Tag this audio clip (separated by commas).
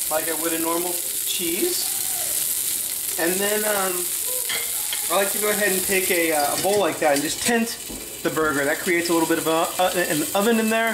Sizzle